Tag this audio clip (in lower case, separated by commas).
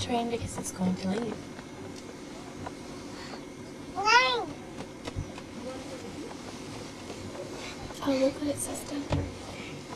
speech